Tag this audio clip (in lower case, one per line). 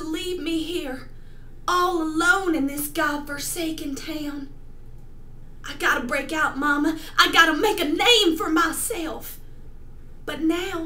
monologue
speech